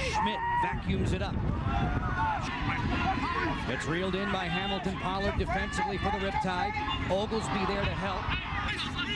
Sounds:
playing lacrosse

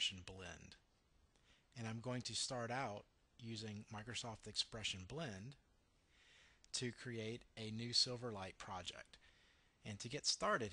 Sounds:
Speech

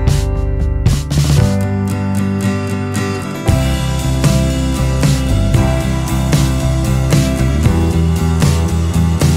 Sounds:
Music

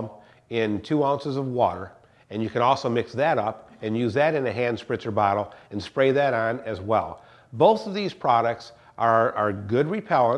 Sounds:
Speech

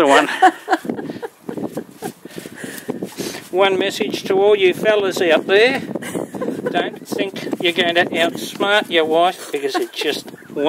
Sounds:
Speech

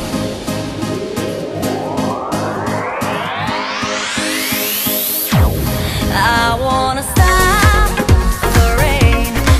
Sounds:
Music

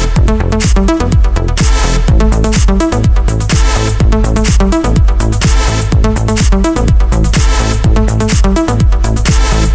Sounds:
Music

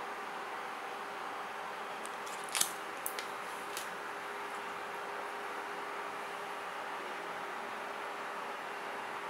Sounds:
Silence, inside a small room

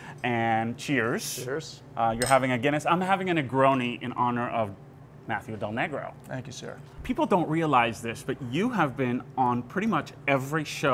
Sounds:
silverware

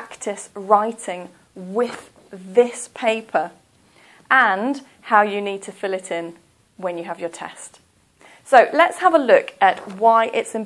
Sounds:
Speech

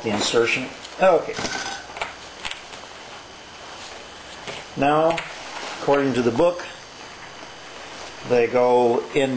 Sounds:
inside a small room, Speech

